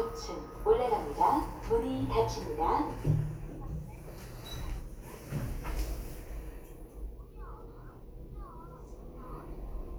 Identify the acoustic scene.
elevator